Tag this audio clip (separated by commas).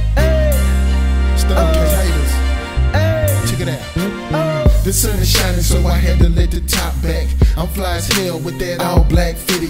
Exciting music, Music